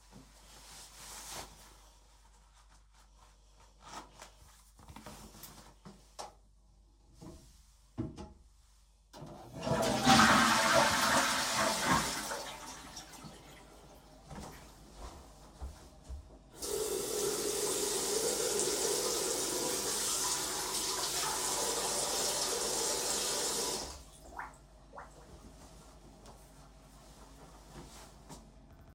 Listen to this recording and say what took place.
I zipped my pants and flushed the toilet. I then walked towards the sink and washed my hands.